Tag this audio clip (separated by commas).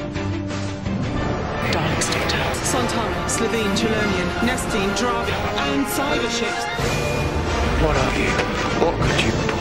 Bang, Music, Speech